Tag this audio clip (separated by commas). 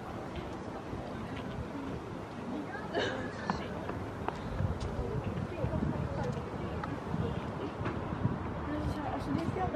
Speech